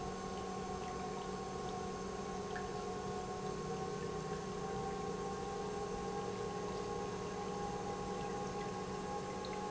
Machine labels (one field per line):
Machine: pump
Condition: normal